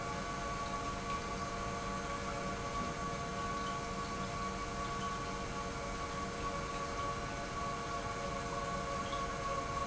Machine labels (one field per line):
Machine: pump